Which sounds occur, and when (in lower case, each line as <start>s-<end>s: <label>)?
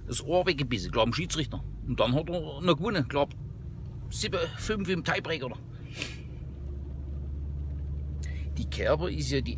0.0s-1.6s: male speech
0.0s-9.5s: car
1.8s-3.3s: male speech
3.3s-3.3s: tick
3.8s-3.9s: tick
4.1s-5.6s: male speech
5.8s-6.2s: sniff
6.0s-6.1s: tick
8.2s-8.2s: tick
8.2s-8.5s: breathing
8.5s-9.5s: male speech